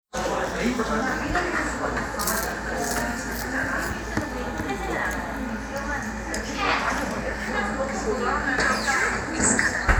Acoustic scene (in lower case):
cafe